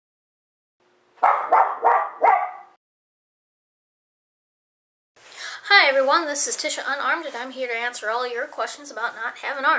A dog barks and then stops followed by a woman speaking